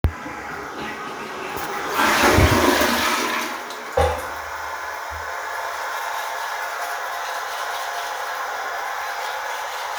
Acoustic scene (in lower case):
restroom